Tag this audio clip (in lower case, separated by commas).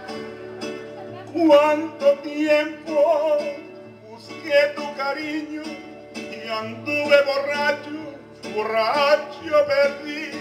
music, male singing